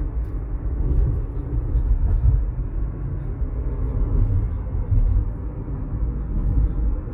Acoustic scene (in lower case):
car